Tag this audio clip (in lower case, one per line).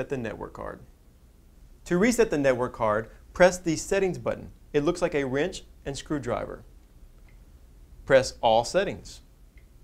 speech